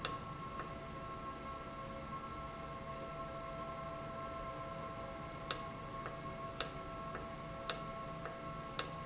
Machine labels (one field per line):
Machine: valve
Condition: normal